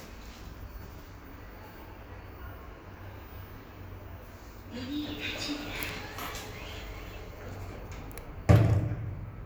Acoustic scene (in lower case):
elevator